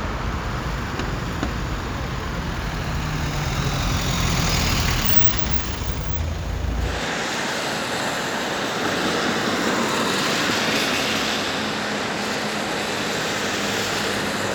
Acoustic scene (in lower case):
street